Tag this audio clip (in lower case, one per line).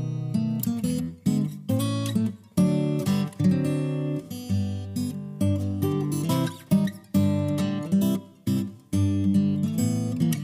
music
rhythm and blues